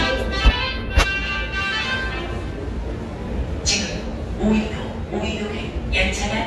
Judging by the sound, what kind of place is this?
subway station